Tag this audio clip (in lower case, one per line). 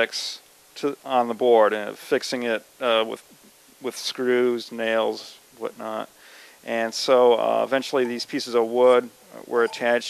speech